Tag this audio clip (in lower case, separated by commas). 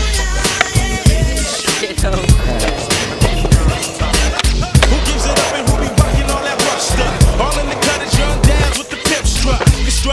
skateboard, music, speech